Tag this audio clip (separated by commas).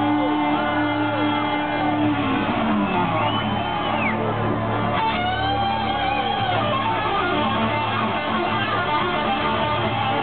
Plucked string instrument, Musical instrument, Music, Electric guitar